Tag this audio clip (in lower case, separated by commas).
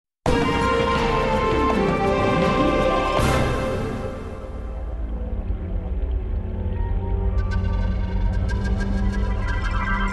music